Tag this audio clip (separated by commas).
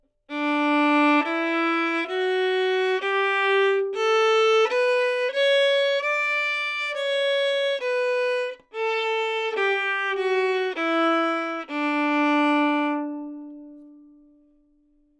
Musical instrument, Music, Bowed string instrument